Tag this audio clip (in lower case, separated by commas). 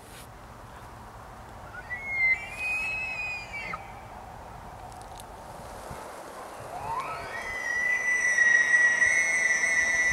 elk bugling